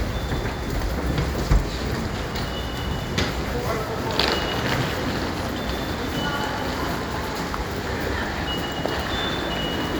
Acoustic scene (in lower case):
subway station